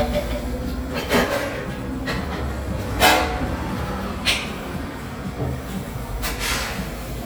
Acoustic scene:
cafe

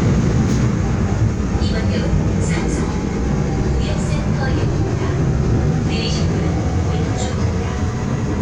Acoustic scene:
subway train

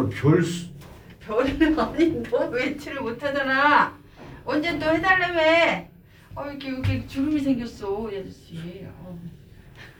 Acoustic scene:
elevator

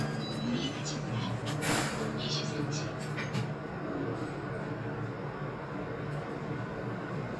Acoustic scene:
elevator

